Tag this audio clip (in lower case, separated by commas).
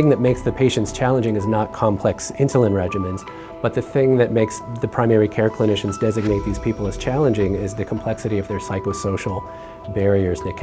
speech, music